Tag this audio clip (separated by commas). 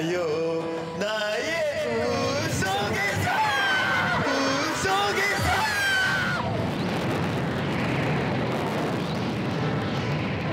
roller coaster running